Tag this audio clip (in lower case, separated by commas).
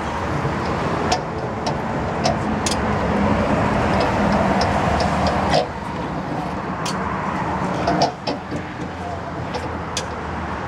air brake